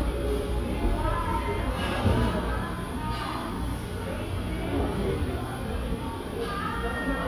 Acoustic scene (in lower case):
cafe